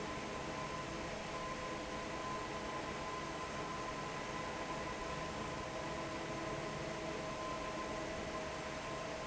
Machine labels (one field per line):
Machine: fan